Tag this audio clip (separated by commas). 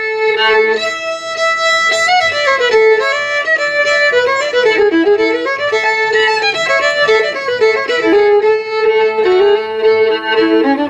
Violin, Musical instrument, Music